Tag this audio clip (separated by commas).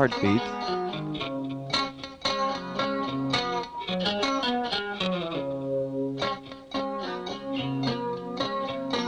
Music, Speech